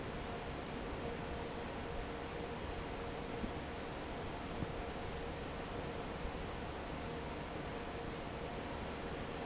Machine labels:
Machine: fan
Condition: normal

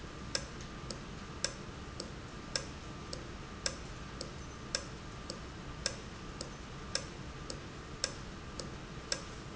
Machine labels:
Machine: valve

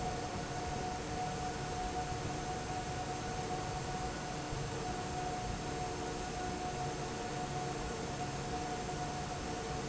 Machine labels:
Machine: fan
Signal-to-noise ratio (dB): -6 dB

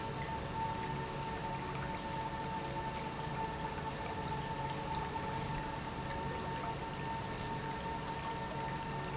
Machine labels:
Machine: pump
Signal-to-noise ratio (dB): -6 dB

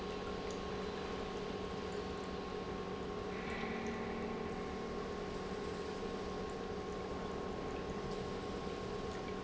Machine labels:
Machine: pump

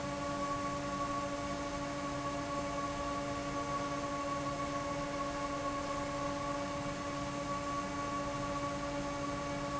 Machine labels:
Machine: fan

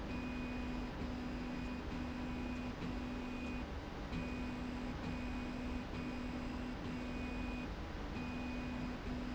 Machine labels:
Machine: slide rail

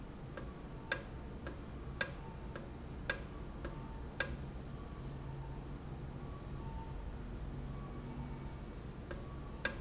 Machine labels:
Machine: valve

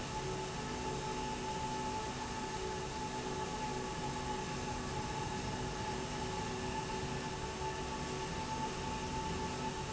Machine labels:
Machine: slide rail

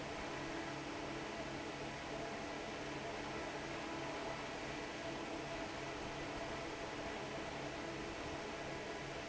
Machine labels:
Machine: fan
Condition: normal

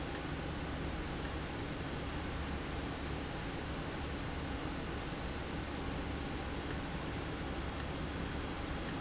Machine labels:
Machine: valve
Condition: abnormal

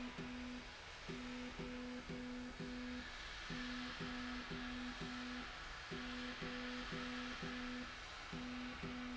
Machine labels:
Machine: slide rail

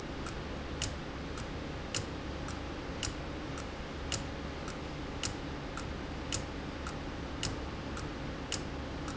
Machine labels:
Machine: valve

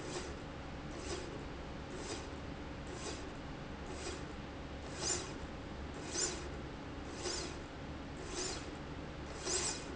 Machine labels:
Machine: slide rail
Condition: normal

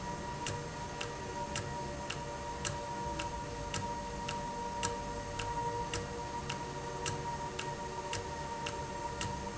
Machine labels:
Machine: valve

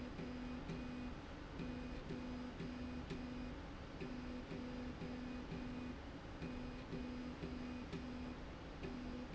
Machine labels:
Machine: slide rail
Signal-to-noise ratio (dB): 6 dB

